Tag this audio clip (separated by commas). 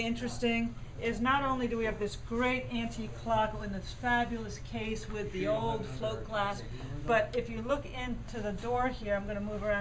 Speech